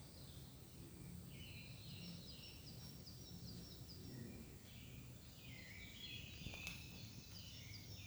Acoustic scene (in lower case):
park